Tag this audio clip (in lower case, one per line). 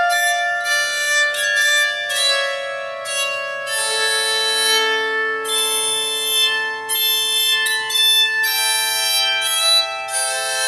playing zither